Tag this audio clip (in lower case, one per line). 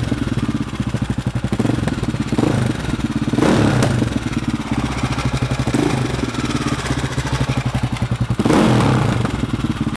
clatter